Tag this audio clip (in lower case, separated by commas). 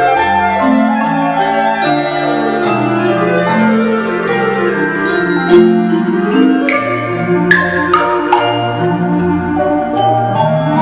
music, marimba, piano, percussion, orchestra, classical music, clarinet, musical instrument